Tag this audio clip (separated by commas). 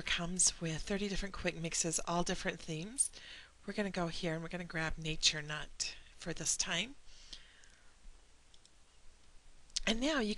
Speech